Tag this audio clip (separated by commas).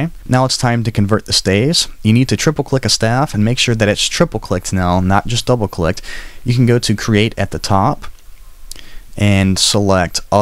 Speech